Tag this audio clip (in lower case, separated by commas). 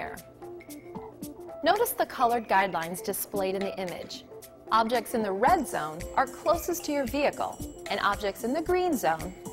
speech, music